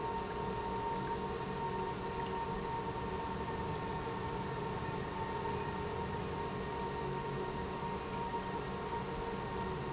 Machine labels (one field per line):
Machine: pump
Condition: normal